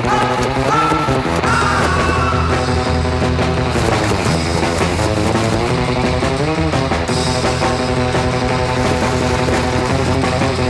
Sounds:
music

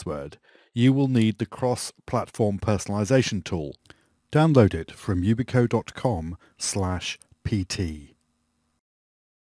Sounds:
speech

